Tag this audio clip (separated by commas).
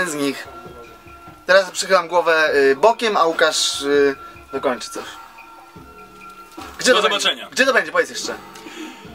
Speech, Music